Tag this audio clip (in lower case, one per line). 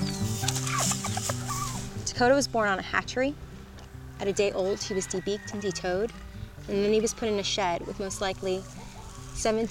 cluck
rooster
crowing
fowl
turkey